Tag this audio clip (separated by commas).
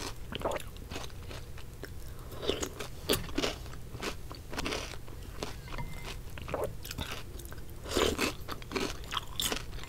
people slurping